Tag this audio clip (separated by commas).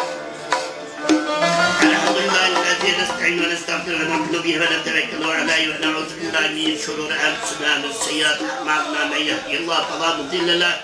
Tabla, Percussion